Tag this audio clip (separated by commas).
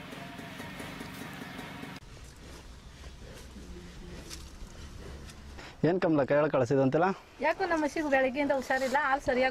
Speech